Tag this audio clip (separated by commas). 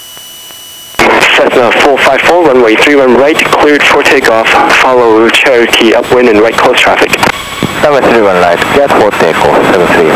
Wind noise (microphone), Speech